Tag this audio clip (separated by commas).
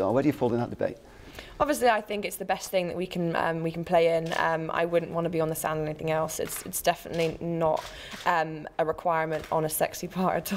Speech